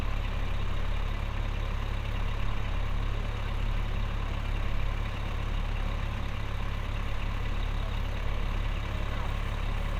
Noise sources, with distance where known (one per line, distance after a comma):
large-sounding engine, near